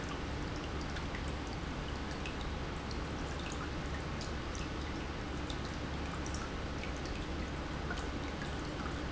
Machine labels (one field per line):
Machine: pump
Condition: normal